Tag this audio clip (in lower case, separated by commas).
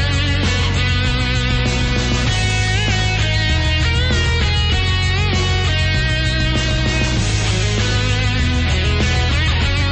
exciting music, music